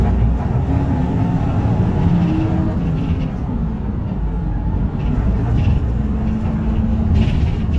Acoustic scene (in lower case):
bus